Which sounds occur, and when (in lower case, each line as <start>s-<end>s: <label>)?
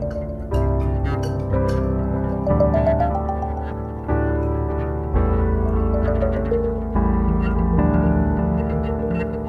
0.0s-9.4s: music